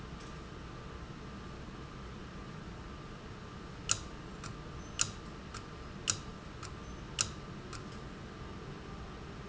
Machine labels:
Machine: valve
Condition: abnormal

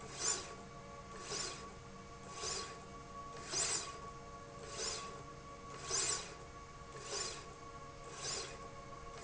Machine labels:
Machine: slide rail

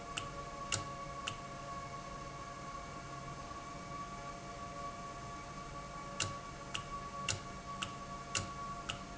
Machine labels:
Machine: valve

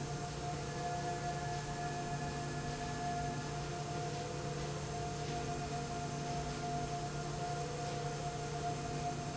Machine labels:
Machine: slide rail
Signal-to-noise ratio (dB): -6 dB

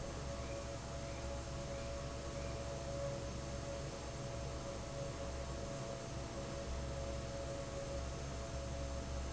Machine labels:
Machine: fan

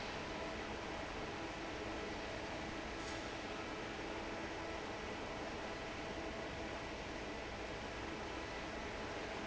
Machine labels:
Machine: fan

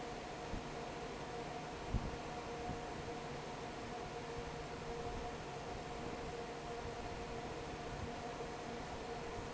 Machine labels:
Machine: fan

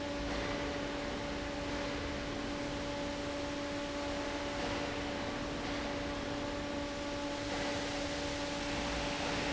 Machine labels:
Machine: fan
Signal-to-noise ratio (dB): -6 dB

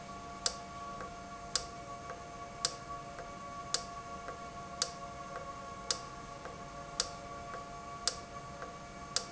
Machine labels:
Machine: valve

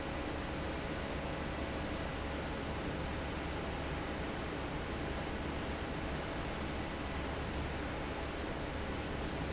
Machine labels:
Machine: fan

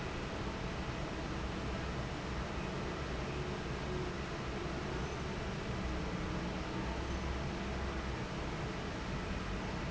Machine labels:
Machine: fan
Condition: normal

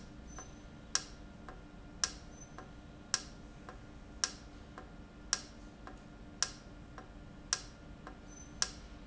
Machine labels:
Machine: valve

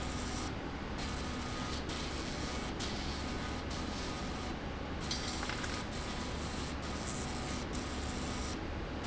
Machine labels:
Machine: slide rail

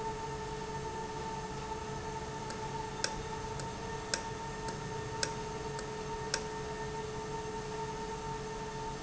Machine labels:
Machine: valve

